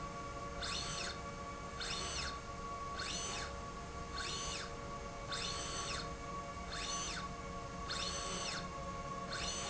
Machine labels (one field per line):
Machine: slide rail